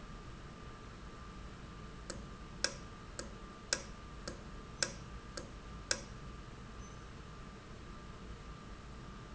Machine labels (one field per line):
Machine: valve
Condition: normal